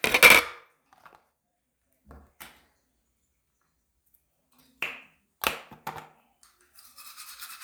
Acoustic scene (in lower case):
restroom